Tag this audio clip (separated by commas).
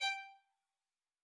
Musical instrument, Music, Bowed string instrument